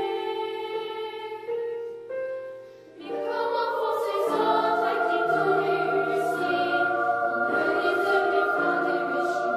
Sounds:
music

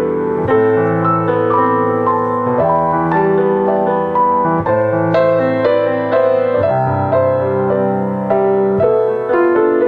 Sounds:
harmonic, music

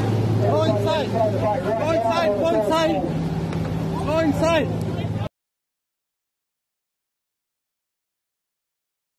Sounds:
volcano explosion

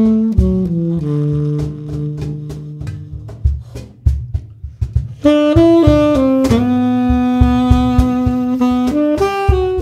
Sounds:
percussion, music

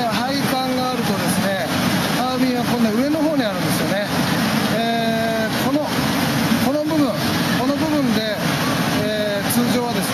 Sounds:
speech, engine

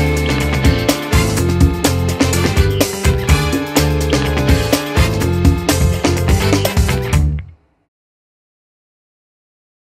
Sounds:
music

